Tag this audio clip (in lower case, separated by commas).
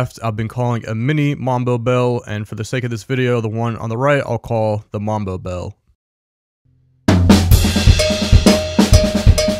speech, hi-hat